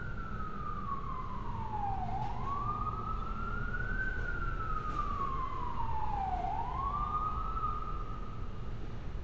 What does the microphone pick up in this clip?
siren